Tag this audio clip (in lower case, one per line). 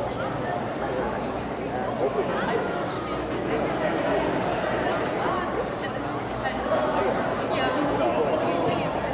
speech
animal
pets